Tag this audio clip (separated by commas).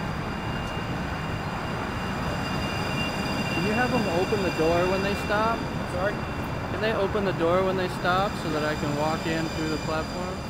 Speech, Train, Vehicle, Rail transport